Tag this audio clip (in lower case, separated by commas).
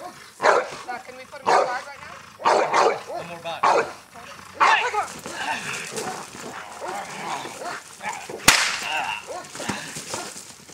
animal, dog bow-wow, bow-wow, speech, domestic animals, dog